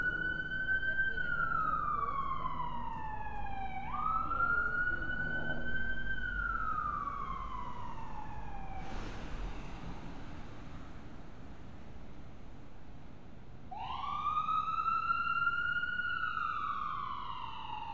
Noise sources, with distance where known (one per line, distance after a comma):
siren